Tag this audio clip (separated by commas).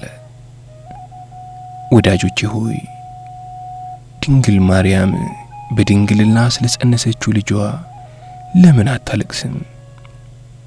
Music, Speech